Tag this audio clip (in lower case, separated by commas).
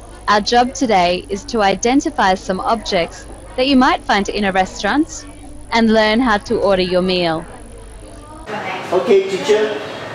speech